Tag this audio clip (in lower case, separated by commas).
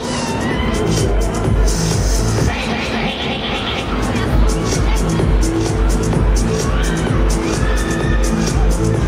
sound effect, music, speech babble